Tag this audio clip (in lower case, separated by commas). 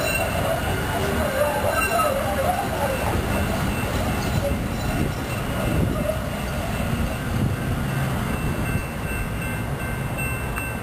train wagon, train, rail transport